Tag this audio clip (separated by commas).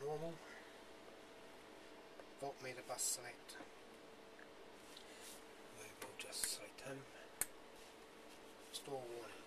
Speech